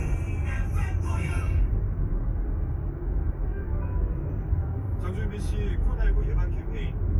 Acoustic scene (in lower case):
car